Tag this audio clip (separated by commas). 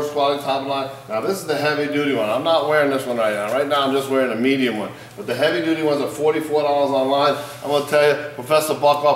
Speech